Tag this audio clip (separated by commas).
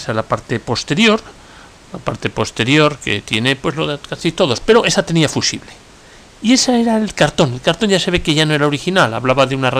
Speech